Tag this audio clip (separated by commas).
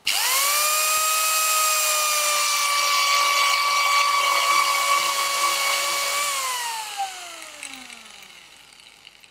Speech, Tools